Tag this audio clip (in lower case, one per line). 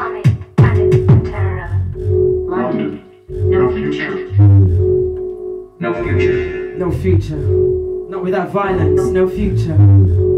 speech
music